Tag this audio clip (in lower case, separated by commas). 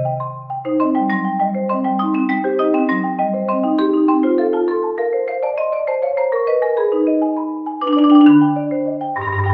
xylophone, glockenspiel, mallet percussion, playing marimba